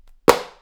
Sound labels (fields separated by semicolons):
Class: object falling; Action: being thrown; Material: plastic